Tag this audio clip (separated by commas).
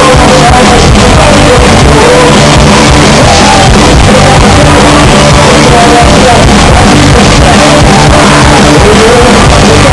Music, Punk rock